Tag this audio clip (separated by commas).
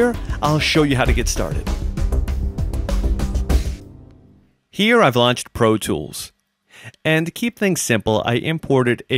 Music, Speech